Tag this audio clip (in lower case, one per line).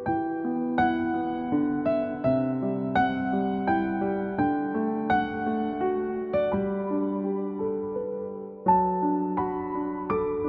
music